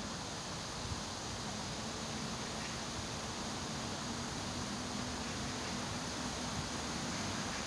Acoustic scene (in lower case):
park